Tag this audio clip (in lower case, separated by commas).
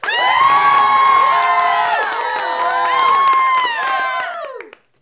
crowd, applause, cheering, human group actions